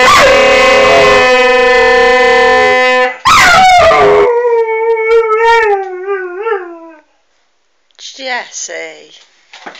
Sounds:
speech
howl

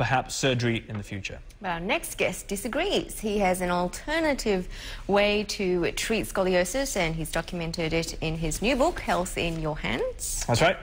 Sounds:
speech

